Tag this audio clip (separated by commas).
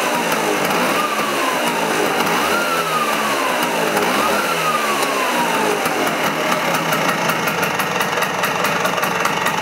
Vehicle, revving